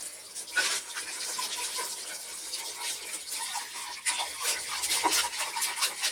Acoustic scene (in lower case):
kitchen